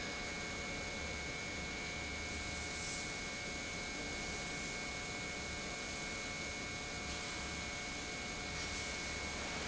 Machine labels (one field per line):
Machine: pump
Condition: normal